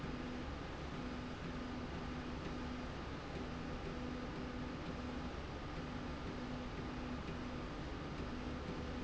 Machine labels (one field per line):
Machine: slide rail